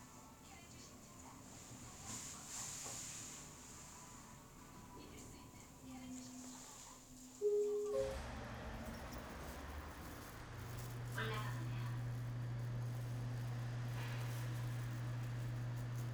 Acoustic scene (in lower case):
elevator